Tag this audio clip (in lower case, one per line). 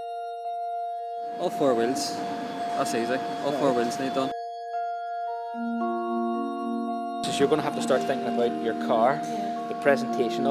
speech
inside a large room or hall
music